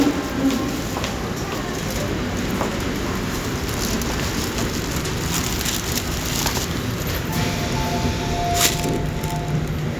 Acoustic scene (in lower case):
subway station